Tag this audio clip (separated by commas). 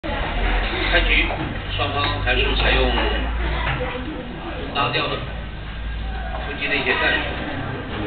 Speech